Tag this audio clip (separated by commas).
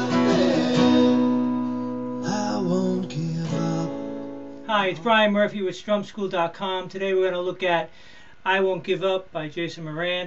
Acoustic guitar, Guitar, Music, Musical instrument, Strum, Speech, Plucked string instrument